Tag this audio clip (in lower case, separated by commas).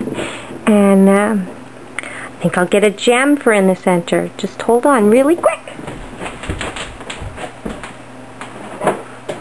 speech, inside a small room